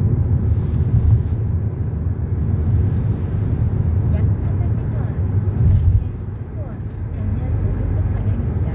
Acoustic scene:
car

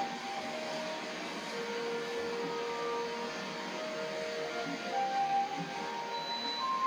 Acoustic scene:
cafe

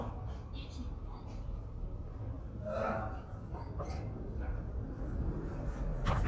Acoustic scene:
elevator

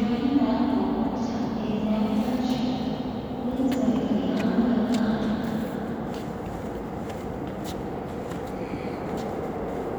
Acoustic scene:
subway station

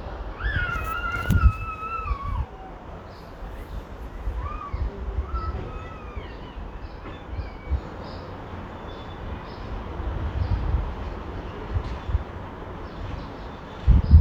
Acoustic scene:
residential area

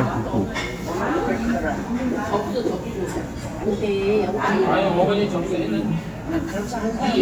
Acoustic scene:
restaurant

